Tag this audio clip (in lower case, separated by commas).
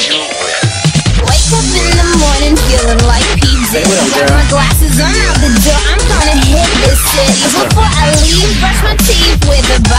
music, dubstep